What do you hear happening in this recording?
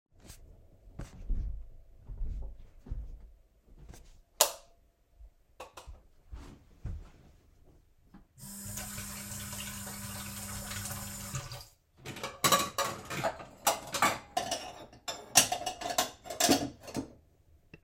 Walked down the stairs to the kitchen, turned on the light switch, turned on water and started cleaning dishes